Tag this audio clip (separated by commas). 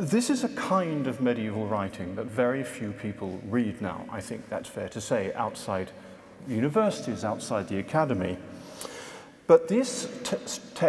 Speech